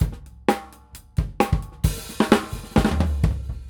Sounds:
percussion, musical instrument, music, drum kit, drum

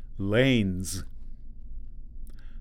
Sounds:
man speaking, human voice, speech

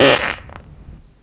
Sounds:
fart

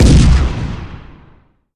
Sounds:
explosion, boom

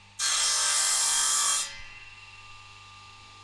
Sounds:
sawing, tools

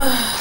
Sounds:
respiratory sounds, breathing

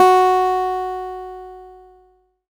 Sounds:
musical instrument, guitar, music, acoustic guitar, plucked string instrument

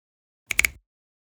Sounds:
hands, finger snapping

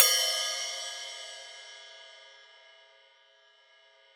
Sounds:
music, cymbal, musical instrument, crash cymbal, percussion

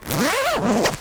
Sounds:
zipper (clothing), domestic sounds

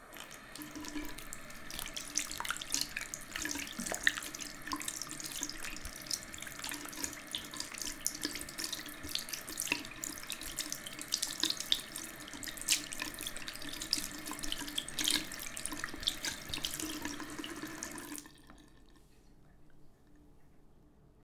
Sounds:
liquid, home sounds, sink (filling or washing)

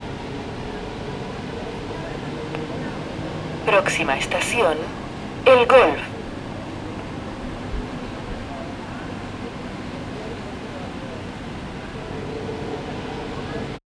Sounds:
underground, vehicle, rail transport

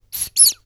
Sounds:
squeak

